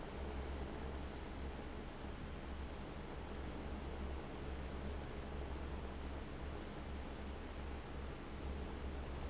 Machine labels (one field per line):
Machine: fan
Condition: abnormal